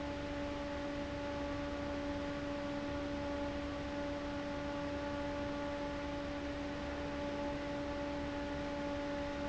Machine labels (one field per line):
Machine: fan